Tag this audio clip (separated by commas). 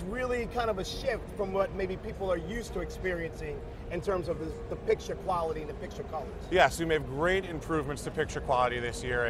Speech